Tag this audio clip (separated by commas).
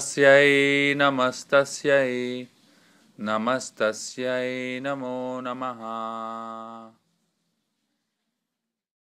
Speech, Mantra